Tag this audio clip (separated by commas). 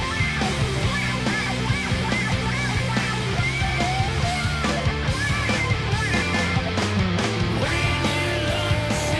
Musical instrument, Music, Electric guitar, Guitar